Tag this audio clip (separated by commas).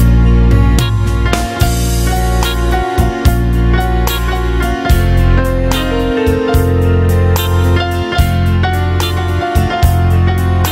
Music